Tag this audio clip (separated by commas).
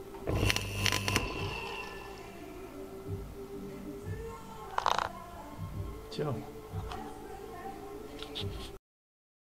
Speech, Music